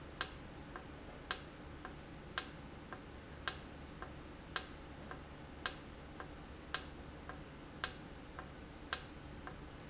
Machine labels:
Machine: valve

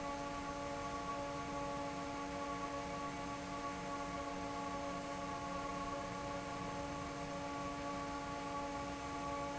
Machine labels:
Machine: fan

